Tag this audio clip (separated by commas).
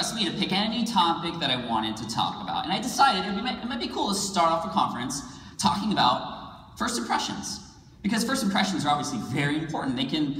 monologue, Speech, man speaking